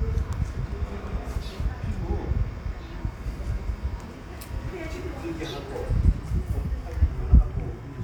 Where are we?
in a residential area